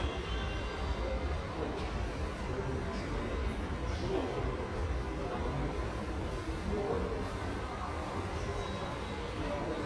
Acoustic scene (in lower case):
subway station